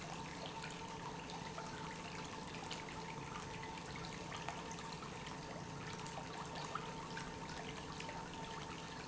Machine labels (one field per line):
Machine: pump